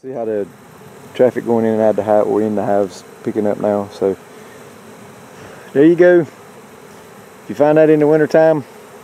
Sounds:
insect, fly, bee or wasp

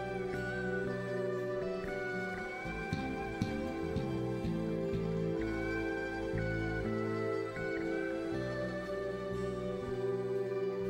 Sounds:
music

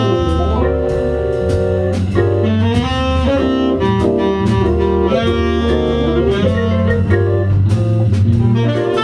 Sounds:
music, hammond organ

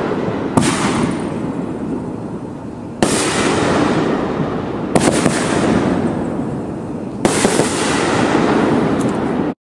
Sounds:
explosion, burst

